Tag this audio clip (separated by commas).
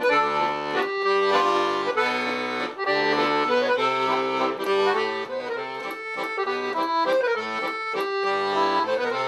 playing accordion